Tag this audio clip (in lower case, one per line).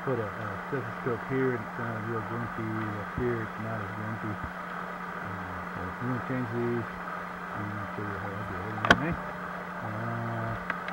speech